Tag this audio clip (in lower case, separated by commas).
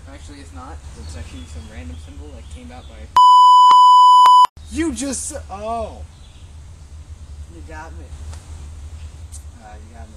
conversation, speech